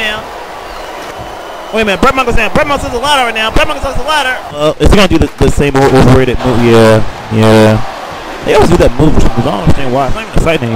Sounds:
speech

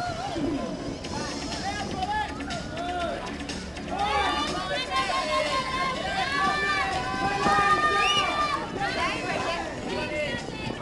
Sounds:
music
speech

